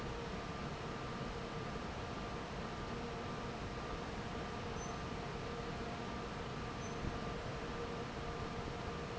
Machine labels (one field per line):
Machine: fan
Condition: normal